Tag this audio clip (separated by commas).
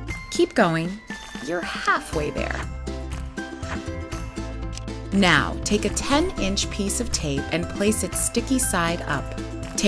Speech, Music